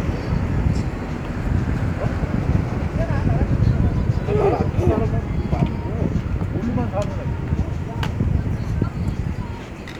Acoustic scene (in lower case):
street